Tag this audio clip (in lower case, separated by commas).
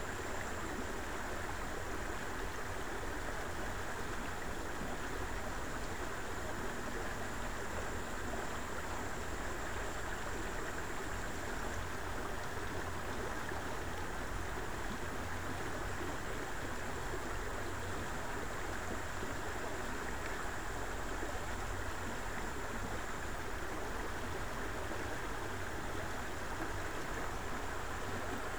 stream, water